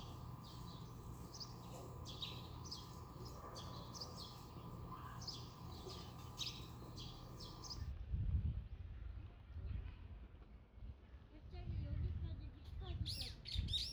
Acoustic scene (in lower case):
residential area